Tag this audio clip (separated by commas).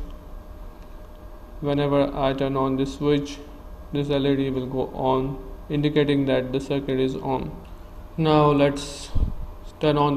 Speech